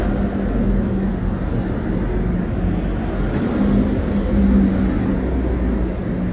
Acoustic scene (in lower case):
street